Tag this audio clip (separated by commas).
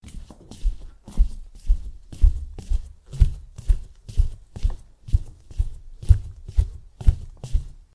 footsteps